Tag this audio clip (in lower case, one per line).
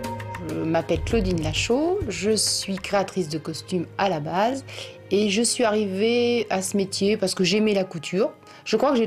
music
speech